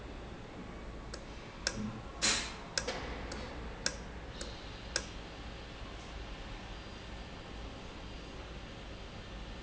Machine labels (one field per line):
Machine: valve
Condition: normal